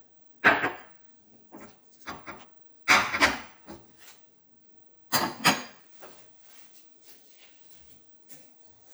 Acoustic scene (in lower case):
kitchen